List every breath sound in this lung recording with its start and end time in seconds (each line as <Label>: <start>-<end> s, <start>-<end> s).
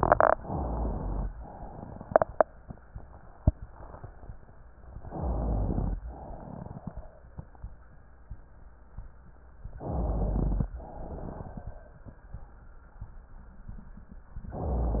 Inhalation: 0.34-1.25 s, 4.93-6.00 s, 9.78-10.75 s
Exhalation: 1.35-2.55 s, 6.01-7.27 s, 10.75-12.26 s
Rhonchi: 5.18-6.02 s, 9.78-10.75 s